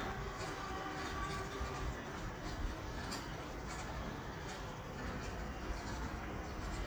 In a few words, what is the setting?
residential area